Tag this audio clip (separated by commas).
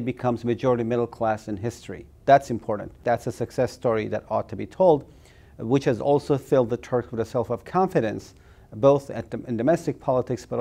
Speech